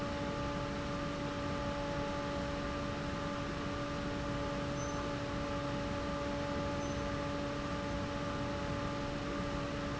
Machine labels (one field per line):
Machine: fan